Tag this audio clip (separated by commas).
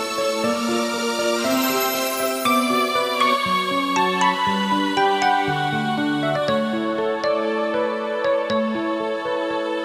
Music